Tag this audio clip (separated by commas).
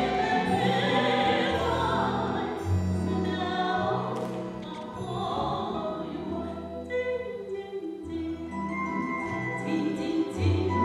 Music, Opera, Orchestra, Classical music